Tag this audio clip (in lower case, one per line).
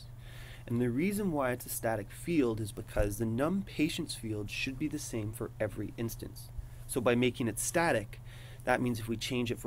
speech